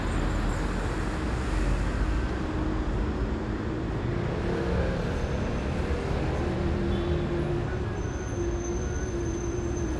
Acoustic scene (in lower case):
street